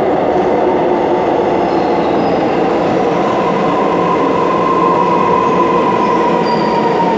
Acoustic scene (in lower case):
subway station